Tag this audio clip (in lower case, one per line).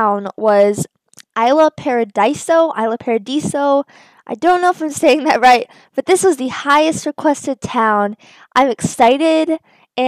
speech